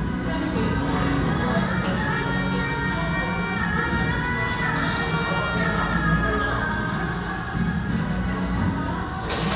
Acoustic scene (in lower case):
restaurant